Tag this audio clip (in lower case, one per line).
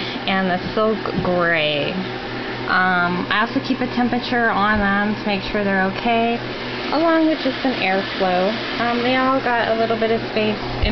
speech